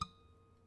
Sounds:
Music, Harp, Musical instrument

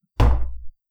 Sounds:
Tap

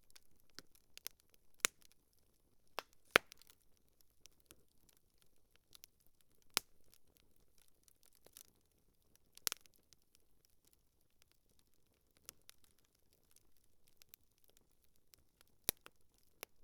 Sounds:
Crackle, Fire

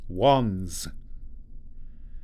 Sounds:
Human voice, man speaking, Speech

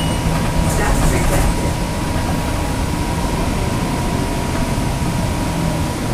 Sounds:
Bus, Motor vehicle (road), Vehicle

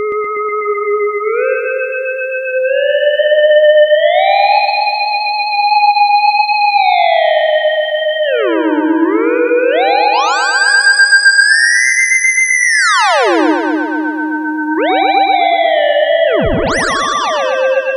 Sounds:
Music, Musical instrument

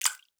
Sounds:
Water, Drip, Liquid

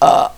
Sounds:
eructation

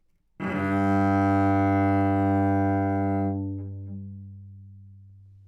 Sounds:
Musical instrument, Music, Bowed string instrument

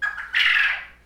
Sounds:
Bird, Wild animals, Animal

